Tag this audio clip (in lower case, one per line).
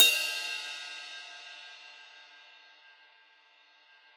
music
crash cymbal
percussion
cymbal
musical instrument